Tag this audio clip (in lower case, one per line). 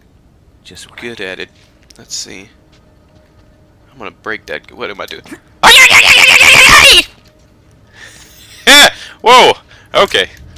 speech